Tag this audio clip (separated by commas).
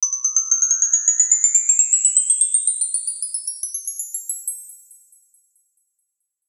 Musical instrument, Percussion, Music, Chime, Wind chime, Bell